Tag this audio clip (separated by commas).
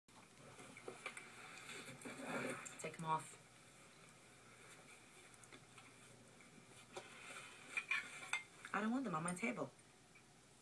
Speech, inside a small room